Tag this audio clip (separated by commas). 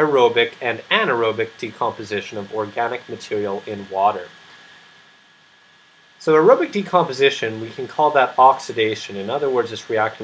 Speech